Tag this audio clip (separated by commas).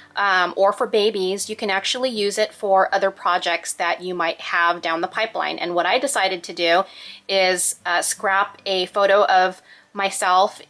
Music, Speech